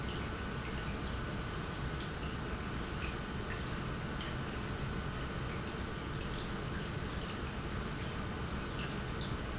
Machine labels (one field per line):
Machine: pump